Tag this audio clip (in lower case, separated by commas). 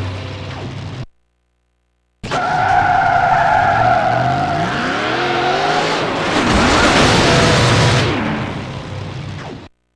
skidding, car, motor vehicle (road), car passing by